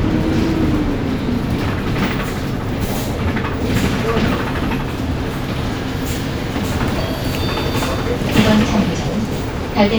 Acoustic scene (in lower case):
bus